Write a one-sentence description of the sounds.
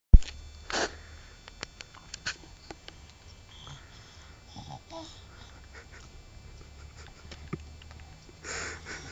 A baby moving around outside while a laugh is chuckled followed by a laugh and a goat noise